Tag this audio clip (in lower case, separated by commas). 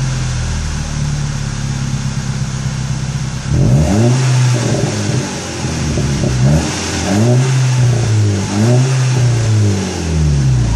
vehicle